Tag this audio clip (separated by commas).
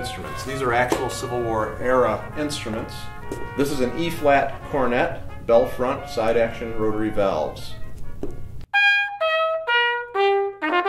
Musical instrument, Jazz, Trumpet, Music, Brass instrument, Speech